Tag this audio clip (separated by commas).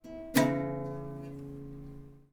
Guitar, Plucked string instrument, Musical instrument, Music